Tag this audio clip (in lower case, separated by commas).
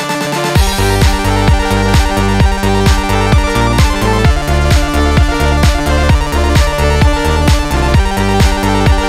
music